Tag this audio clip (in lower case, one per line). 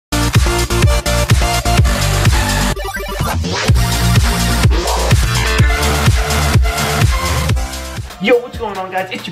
electronic dance music
speech
music